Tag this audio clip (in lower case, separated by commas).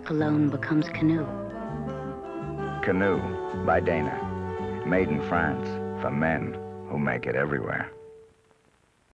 speech, music